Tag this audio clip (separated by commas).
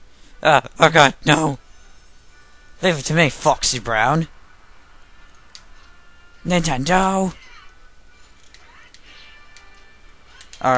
Music, Speech